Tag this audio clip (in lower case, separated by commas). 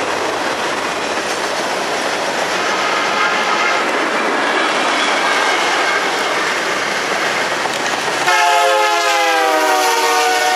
train, clickety-clack, train horn, train wagon, rail transport